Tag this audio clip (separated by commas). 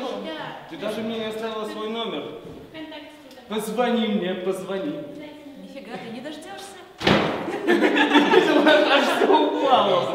Speech